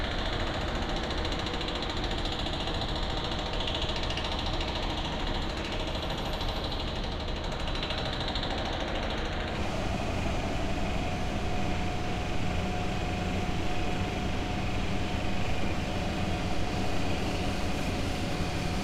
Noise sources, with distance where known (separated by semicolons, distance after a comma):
jackhammer